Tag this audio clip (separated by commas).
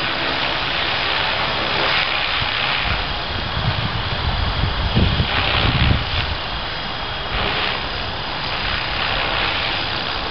Wind noise (microphone)